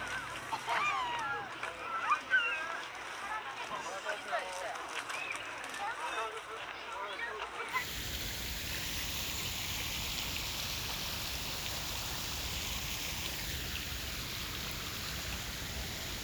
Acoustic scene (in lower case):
park